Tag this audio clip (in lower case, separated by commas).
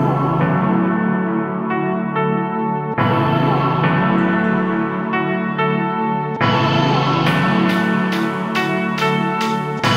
music, ambient music